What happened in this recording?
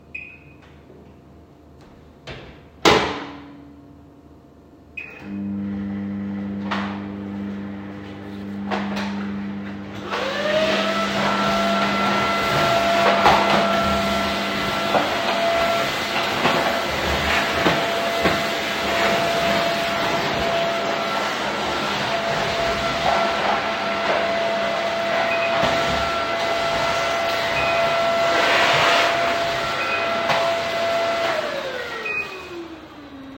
I selected the microwave setting, closed the microwave door, and started it. While the microwave was running, I turned on the vacuum cleaner and began vacuum cleaning. Then the microwave end sound started while the vacuum cleaner was still running. Finally, the vacuum cleaner stopped while the microwave end sound was still audible.